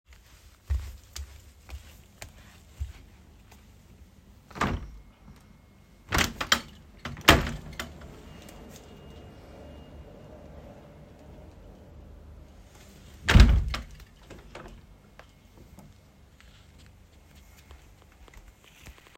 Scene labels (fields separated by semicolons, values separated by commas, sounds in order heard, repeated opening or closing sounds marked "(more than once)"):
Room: living room; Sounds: footsteps, window (more than once)